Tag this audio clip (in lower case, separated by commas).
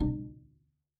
musical instrument, music, bowed string instrument